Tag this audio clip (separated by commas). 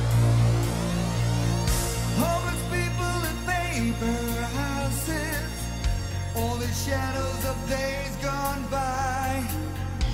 Music